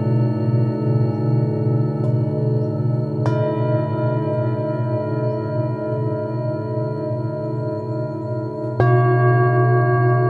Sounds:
singing bowl, music, new-age music

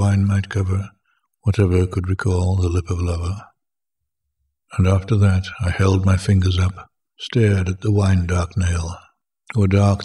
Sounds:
speech

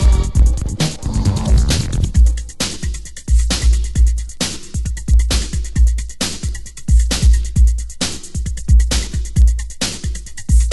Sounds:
music, electronic music, techno

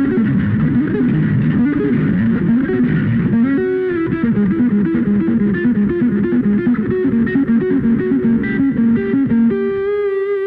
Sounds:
musical instrument, guitar, music, reverberation, electric guitar, bass guitar

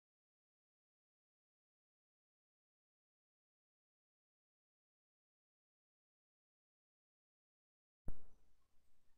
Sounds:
speech

